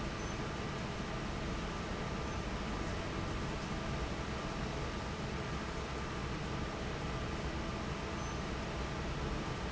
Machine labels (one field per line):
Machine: fan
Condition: normal